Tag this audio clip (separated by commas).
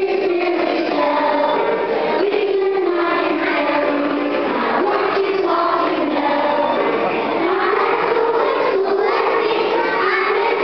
Music, Choir, Child singing